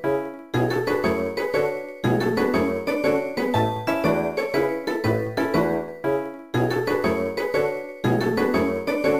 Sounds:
music

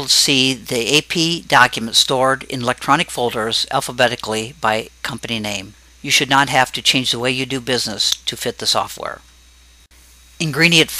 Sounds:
narration

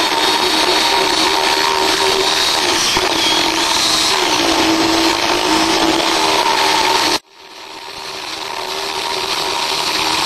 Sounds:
tools

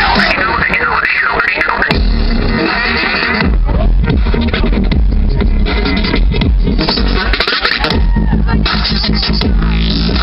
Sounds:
speech
pop music
crowd
music

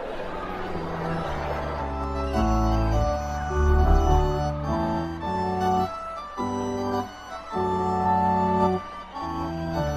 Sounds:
music

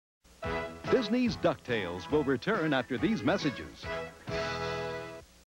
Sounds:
speech
music

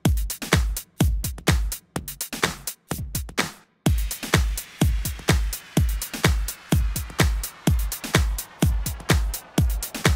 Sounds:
exciting music
music

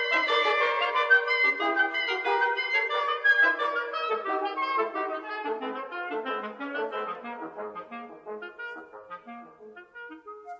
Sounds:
flute
wind instrument

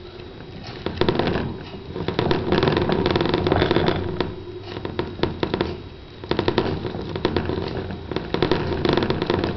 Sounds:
mice

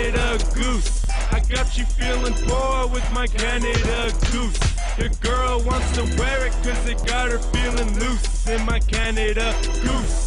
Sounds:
music

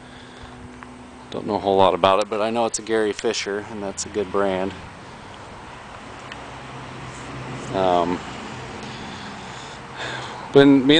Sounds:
speech
vehicle

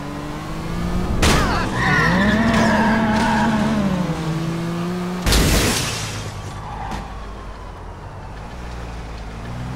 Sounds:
police car (siren)

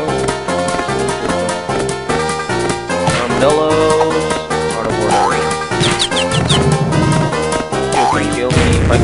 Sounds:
speech
music

